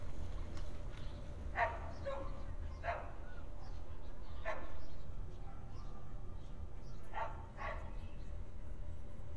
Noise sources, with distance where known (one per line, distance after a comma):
dog barking or whining, near